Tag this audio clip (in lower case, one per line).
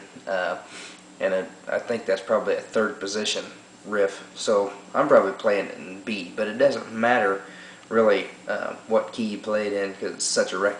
speech